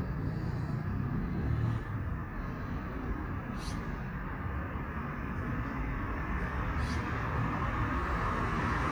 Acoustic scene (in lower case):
street